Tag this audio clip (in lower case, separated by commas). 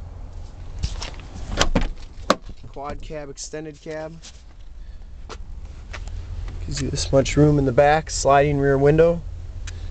car, vehicle